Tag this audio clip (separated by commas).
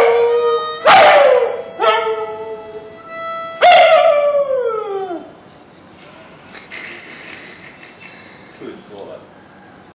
Bow-wow, Music, Speech